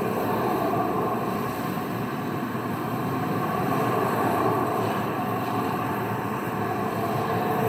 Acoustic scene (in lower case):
street